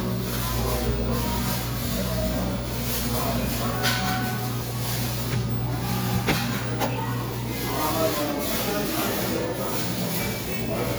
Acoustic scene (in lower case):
cafe